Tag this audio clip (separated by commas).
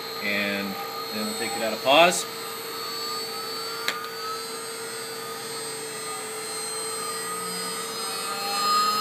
Drill, Tools, Speech